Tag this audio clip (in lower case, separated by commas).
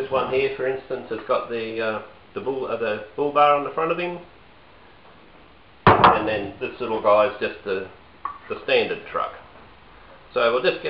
speech